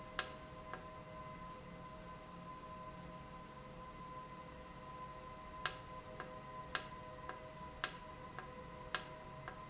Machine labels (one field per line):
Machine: valve